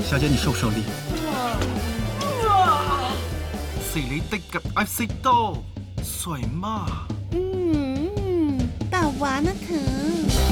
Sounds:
Speech, Music

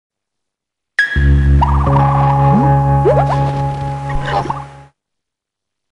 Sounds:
Music

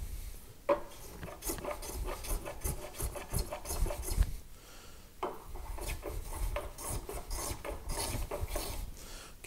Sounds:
Rub, Wood, Filing (rasp)

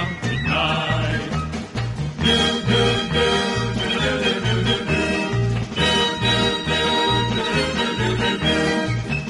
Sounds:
Music, Male singing

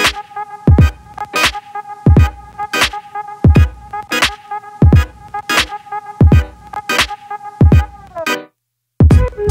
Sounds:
Music

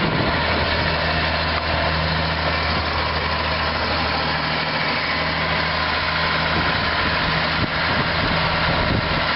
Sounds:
Vehicle

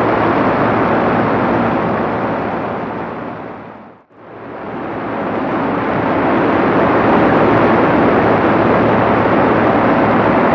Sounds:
Vehicle

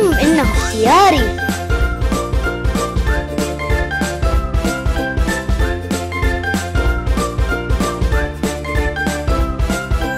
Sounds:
Music, Speech

